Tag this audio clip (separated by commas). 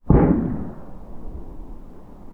Explosion